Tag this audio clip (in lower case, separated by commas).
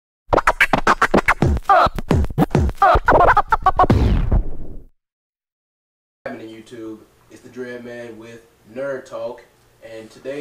inside a small room, music, speech